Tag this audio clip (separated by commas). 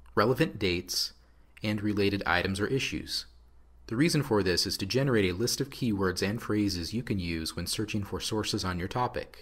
Speech